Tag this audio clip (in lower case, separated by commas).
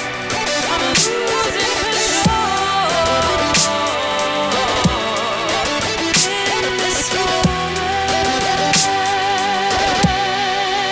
music, electronic music, dubstep